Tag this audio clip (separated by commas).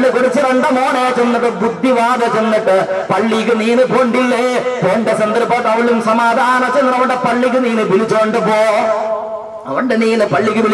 man speaking, Speech